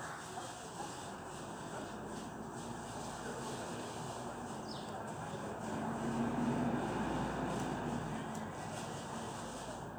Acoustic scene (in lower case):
residential area